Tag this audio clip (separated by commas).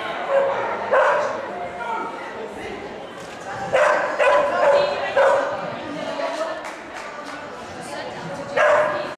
Speech